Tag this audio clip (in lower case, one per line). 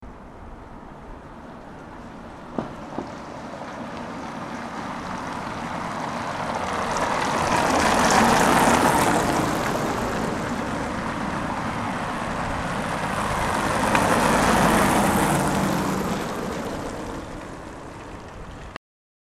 vehicle
motor vehicle (road)